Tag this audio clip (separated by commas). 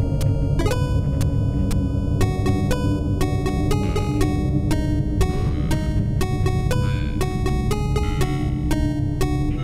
Theme music, Background music, Music